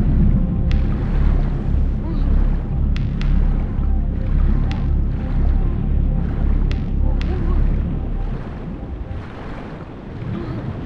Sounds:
music

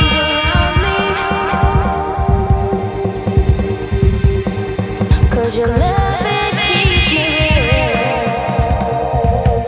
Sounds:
music
electronic music

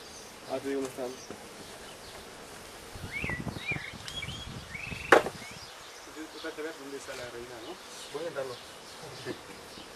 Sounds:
animal
speech

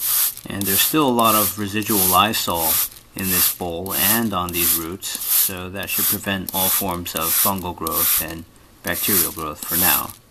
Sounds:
speech

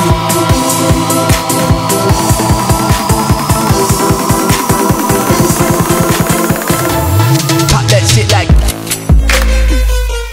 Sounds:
music

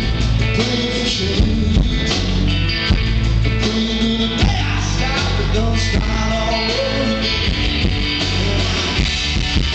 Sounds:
music
speech
rock and roll

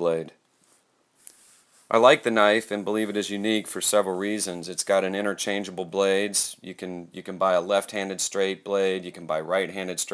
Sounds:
speech

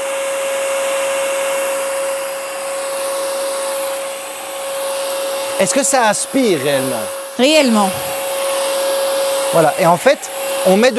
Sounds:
vacuum cleaner cleaning floors

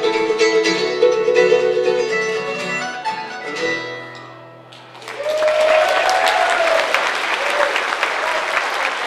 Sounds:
playing mandolin

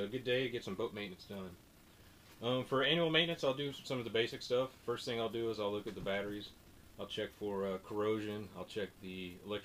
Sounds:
speech

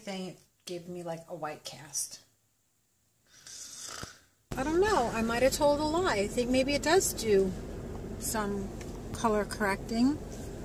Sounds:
speech

